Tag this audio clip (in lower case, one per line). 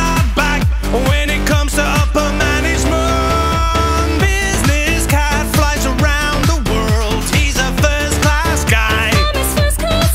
music